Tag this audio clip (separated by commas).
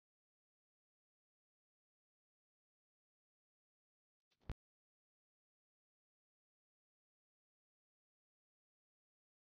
Trance music, Music, Techno